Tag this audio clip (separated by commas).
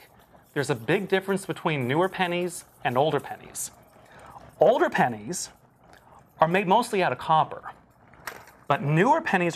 Music, Speech